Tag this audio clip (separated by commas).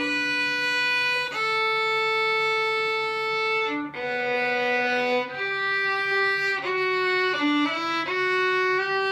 Musical instrument, Music, Violin